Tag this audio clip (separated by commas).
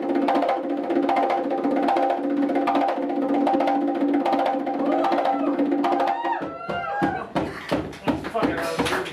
playing congas